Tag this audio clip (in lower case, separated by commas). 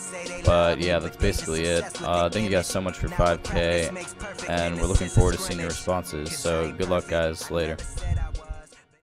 music, speech, echo